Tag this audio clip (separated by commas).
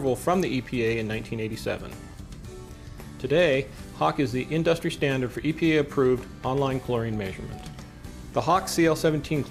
Speech, Music